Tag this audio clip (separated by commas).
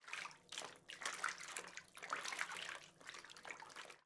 Bathtub (filling or washing), Domestic sounds